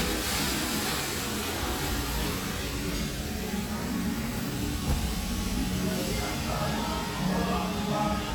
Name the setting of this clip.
restaurant